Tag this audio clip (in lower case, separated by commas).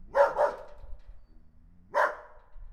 dog, animal, domestic animals, bark